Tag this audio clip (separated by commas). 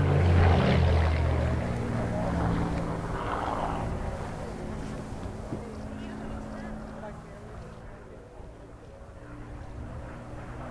Speech